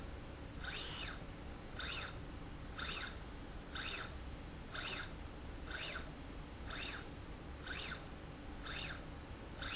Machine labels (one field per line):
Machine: slide rail